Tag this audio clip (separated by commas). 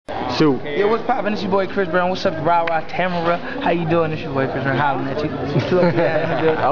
Speech